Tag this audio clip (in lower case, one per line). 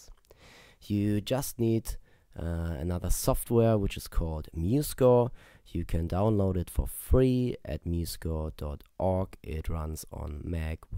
speech